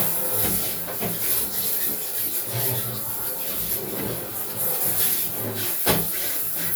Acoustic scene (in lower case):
restroom